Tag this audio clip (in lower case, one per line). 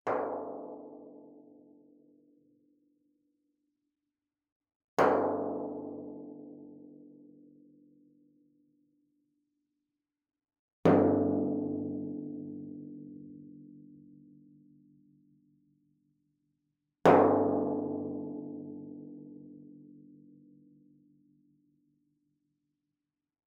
drum
percussion
music
musical instrument